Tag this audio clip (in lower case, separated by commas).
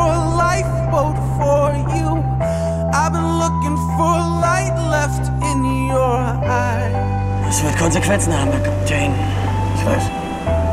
speech, music